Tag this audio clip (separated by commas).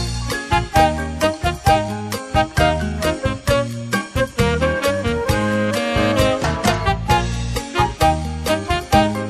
Music